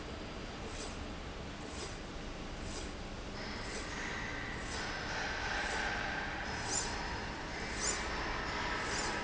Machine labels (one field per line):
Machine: slide rail